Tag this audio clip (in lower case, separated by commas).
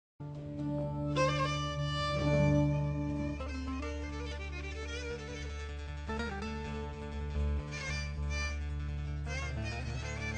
music, string section, fiddle